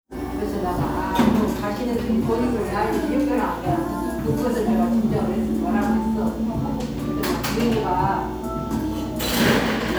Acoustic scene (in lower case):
cafe